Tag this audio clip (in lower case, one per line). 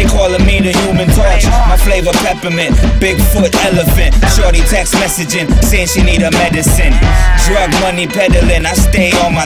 music